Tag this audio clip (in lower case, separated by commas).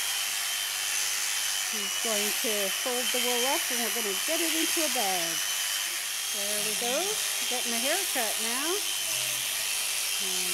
speech